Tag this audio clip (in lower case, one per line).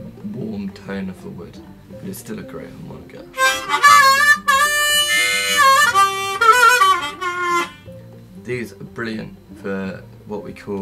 inside a small room
harmonica
speech
music